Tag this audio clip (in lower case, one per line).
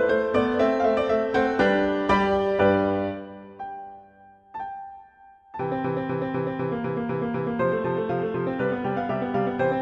music